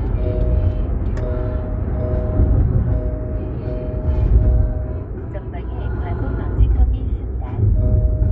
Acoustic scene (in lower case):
car